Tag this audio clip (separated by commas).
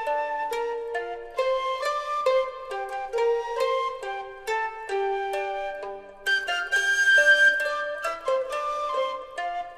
Music